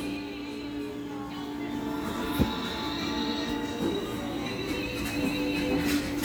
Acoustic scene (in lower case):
cafe